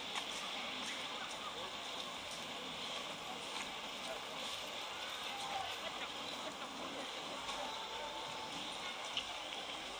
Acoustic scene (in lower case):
park